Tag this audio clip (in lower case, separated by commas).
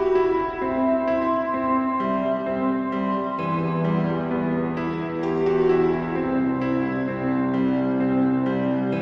music